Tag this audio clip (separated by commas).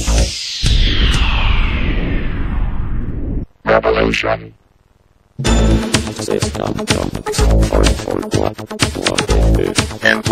Music, Speech synthesizer